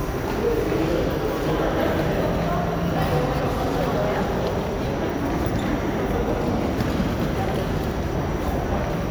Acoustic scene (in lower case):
subway station